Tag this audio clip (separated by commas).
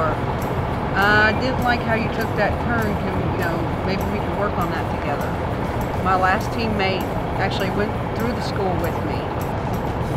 Speech, Music